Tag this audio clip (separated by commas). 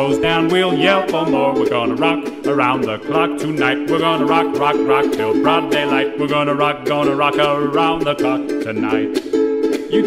Music